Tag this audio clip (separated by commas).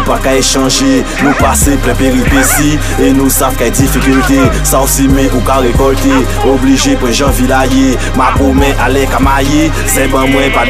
Music